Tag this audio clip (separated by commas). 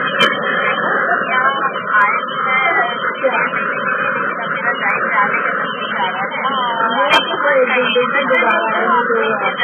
Radio, Speech